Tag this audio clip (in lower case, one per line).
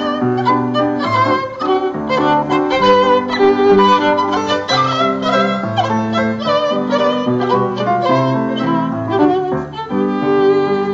piano
music
violin
musical instrument